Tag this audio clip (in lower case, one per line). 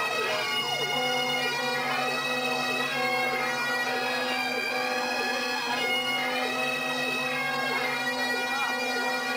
vehicle
speech
music